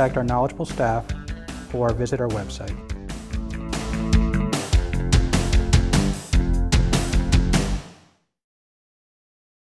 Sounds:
speech, music

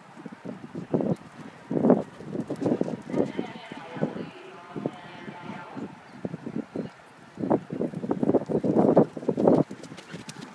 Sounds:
animal, horse, speech

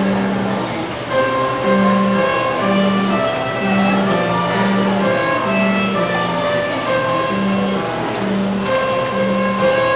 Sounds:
musical instrument, fiddle, music

